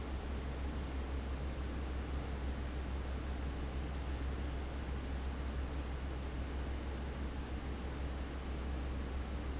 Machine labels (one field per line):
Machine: fan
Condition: abnormal